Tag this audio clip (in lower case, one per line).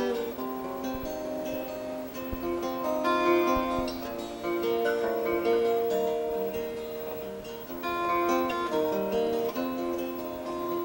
plucked string instrument
music
guitar
musical instrument
acoustic guitar